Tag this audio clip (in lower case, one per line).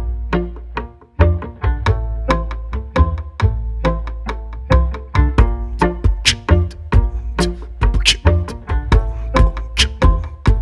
musical instrument
music